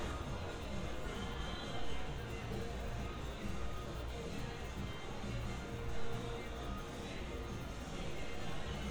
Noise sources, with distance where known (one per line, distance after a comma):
music from an unclear source